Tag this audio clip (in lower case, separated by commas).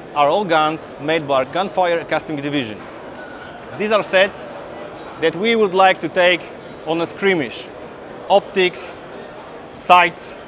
speech